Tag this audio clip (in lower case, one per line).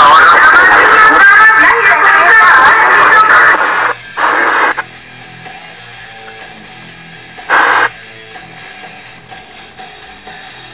radio
music